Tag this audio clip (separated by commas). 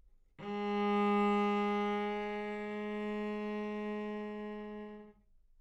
Music, Bowed string instrument, Musical instrument